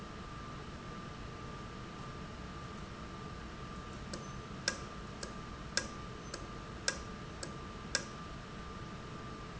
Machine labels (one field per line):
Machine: valve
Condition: normal